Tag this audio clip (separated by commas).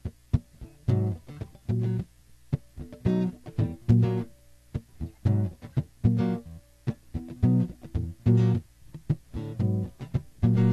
Plucked string instrument, inside a small room, Musical instrument, Music, Electronic tuner, Guitar